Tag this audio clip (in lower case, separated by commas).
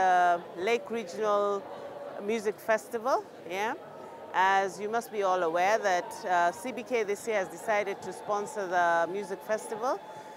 speech